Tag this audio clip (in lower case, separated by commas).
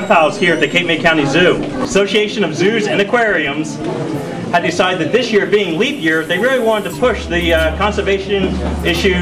speech